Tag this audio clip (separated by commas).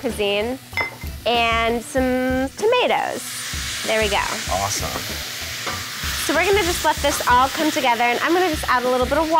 inside a small room, Speech, Music